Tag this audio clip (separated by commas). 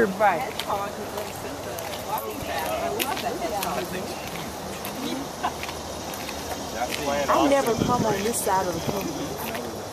Speech